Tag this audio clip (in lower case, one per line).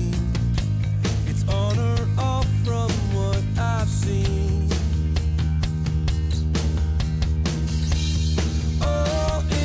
music
tender music